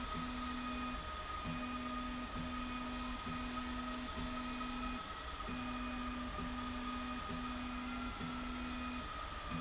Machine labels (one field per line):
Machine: slide rail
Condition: normal